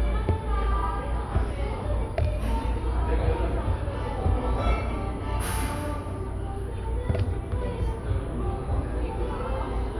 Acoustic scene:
cafe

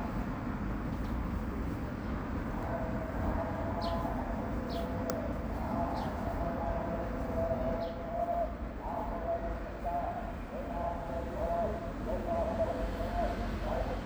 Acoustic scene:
residential area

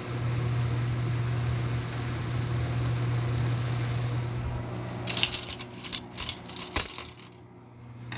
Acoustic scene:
kitchen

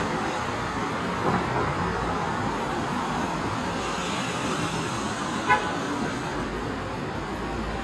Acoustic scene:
street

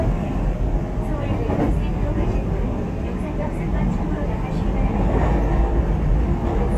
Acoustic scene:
subway train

